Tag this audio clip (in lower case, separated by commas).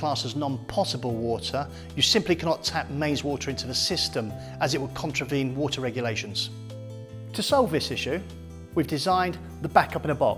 music, speech